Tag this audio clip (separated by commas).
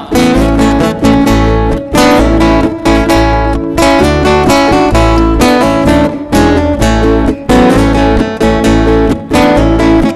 Music